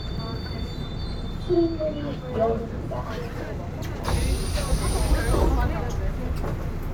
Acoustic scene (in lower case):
subway train